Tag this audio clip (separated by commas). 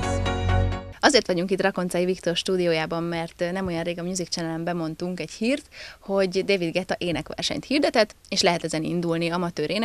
Music, Speech